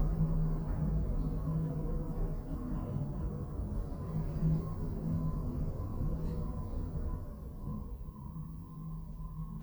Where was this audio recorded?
in an elevator